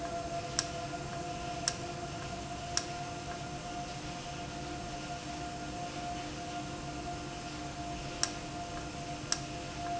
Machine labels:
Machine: valve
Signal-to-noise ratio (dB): -6 dB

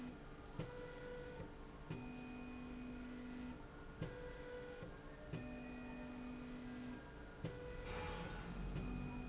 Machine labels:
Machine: slide rail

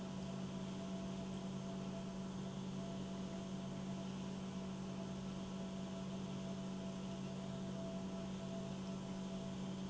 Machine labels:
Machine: pump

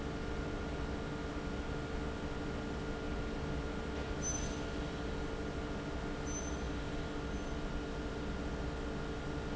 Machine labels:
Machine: fan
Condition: abnormal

